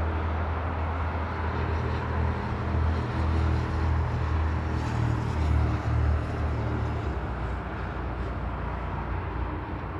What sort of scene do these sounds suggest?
street